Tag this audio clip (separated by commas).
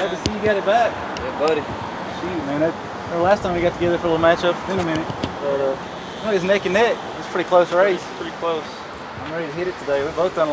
Speech